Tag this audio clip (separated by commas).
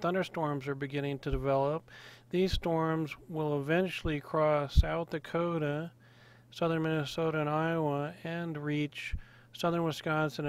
Speech